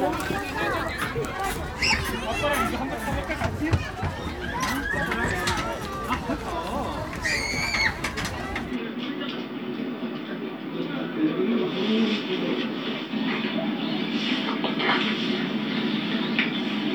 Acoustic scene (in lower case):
park